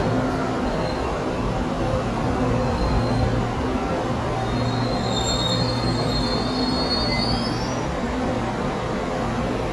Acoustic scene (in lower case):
subway station